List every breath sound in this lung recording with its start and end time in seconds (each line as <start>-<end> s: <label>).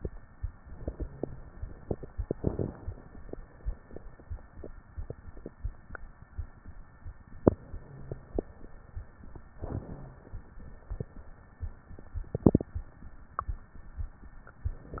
2.29-3.19 s: crackles
2.31-3.31 s: inhalation
7.56-8.56 s: inhalation
7.66-8.56 s: crackles
8.54-9.37 s: exhalation
9.53-10.44 s: crackles
9.53-10.53 s: inhalation
10.53-11.36 s: exhalation